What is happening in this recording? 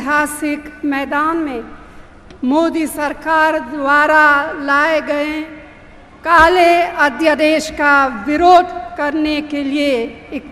A female giving a monologue type speech